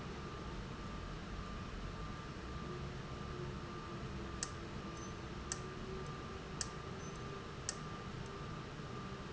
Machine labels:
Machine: valve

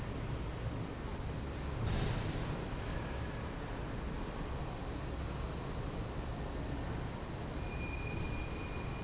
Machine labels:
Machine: fan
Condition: normal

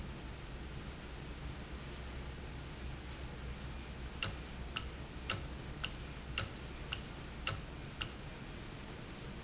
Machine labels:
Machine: valve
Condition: normal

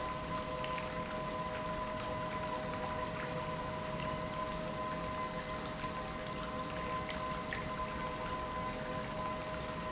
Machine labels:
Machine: pump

